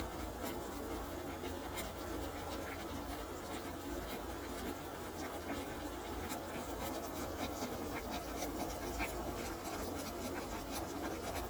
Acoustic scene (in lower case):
kitchen